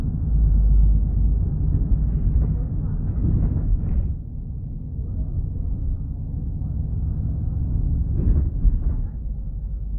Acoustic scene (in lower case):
bus